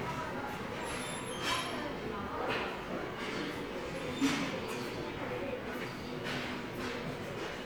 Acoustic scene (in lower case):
subway station